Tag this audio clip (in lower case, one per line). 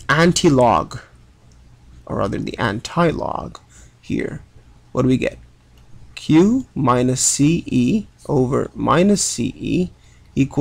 narration
speech